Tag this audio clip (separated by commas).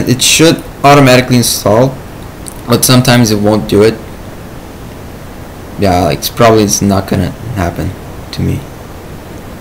Speech